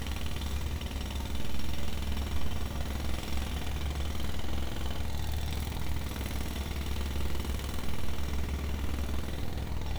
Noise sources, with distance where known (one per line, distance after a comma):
unidentified impact machinery